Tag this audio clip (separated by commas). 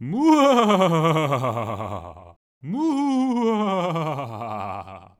Human voice, Laughter